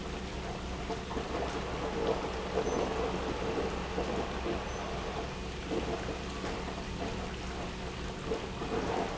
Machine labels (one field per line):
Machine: pump